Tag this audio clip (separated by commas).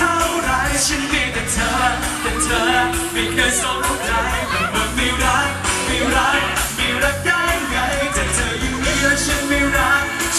Rustle, Music